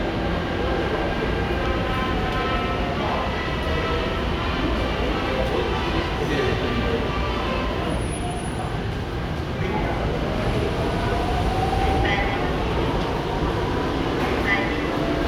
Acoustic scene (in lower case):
subway station